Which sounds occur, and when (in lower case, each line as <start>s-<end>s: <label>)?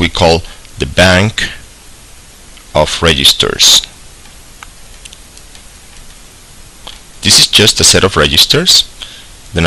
0.0s-9.6s: background noise
0.0s-0.5s: man speaking
0.8s-1.6s: man speaking
2.7s-3.9s: man speaking
7.2s-8.8s: man speaking